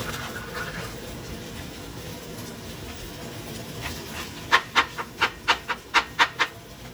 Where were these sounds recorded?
in a kitchen